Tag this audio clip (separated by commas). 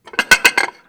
dishes, pots and pans, home sounds